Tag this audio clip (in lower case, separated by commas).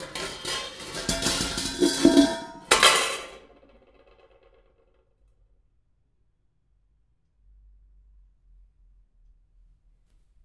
dishes, pots and pans, home sounds